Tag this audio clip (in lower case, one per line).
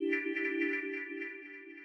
musical instrument
ringtone
telephone
alarm
music
keyboard (musical)